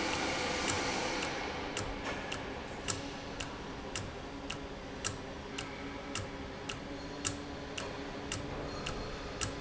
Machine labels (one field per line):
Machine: valve